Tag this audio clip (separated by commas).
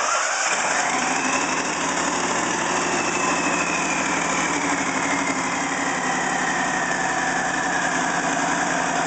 Engine